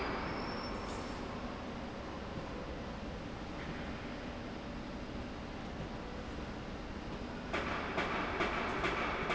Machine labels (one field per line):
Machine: slide rail